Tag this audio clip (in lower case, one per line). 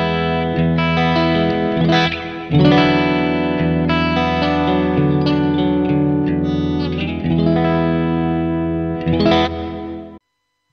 music